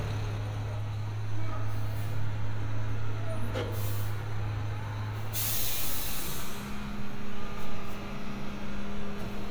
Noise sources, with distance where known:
engine of unclear size, near

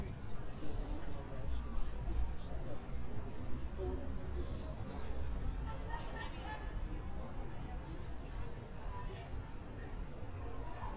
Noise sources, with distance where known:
person or small group talking, far

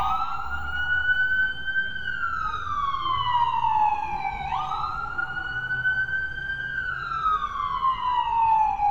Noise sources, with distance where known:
siren, near

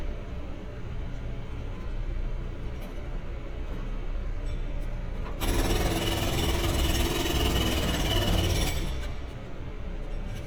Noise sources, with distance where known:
jackhammer, near

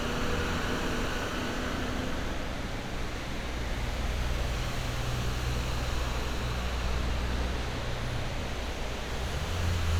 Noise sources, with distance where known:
large-sounding engine, near

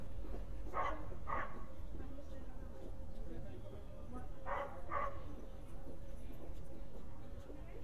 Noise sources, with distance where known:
dog barking or whining, far

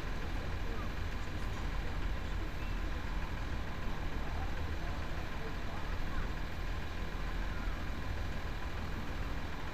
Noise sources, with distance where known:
large-sounding engine, near; person or small group talking

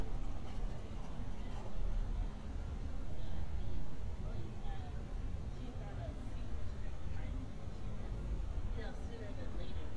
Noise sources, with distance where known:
person or small group talking

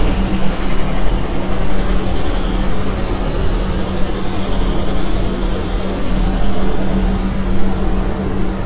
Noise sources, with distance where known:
large-sounding engine, near

